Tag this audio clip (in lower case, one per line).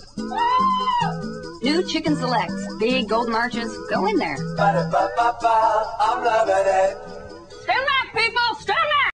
speech
music